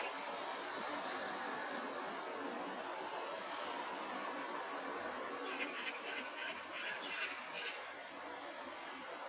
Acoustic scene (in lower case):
park